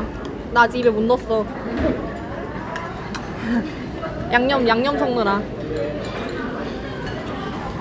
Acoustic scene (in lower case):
restaurant